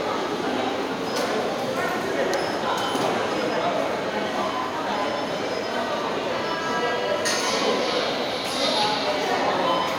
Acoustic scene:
subway station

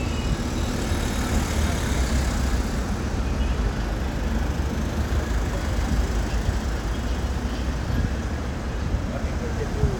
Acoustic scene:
street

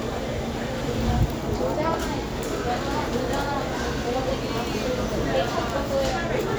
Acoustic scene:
crowded indoor space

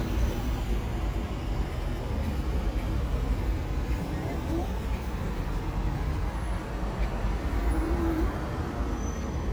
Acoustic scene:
street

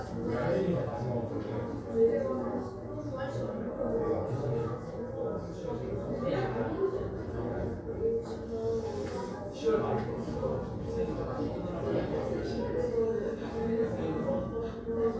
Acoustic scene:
crowded indoor space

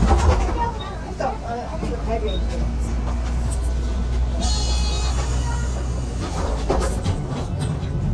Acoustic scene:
bus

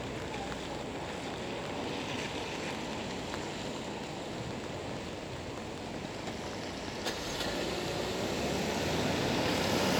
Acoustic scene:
street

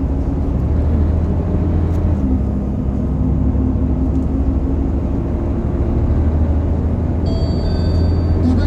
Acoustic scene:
bus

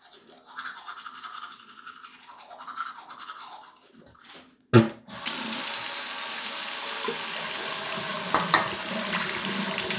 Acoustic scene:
restroom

